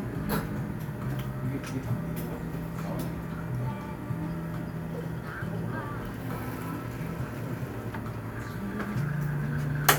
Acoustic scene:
cafe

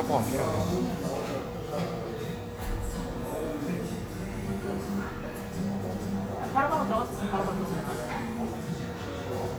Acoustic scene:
cafe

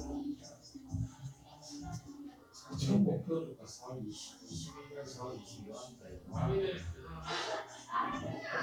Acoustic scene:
crowded indoor space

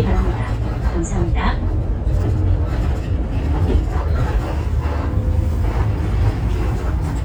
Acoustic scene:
bus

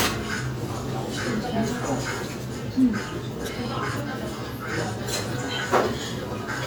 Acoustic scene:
restaurant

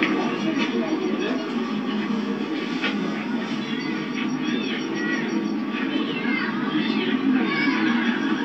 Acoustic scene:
park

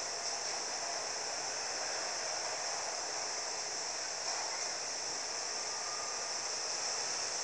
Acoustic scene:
street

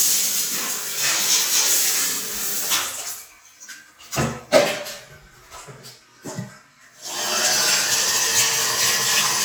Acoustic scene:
restroom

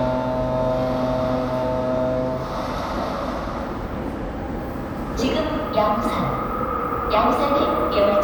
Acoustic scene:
subway station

